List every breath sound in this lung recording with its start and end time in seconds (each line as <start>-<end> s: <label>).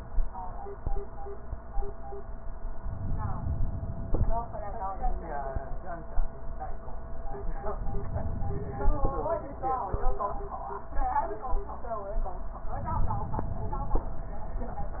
2.73-4.15 s: inhalation
7.80-9.23 s: inhalation
12.70-14.13 s: inhalation